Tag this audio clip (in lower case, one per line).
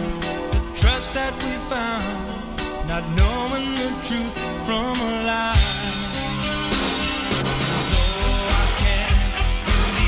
male singing
music